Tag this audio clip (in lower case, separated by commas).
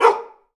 bark, dog, pets, animal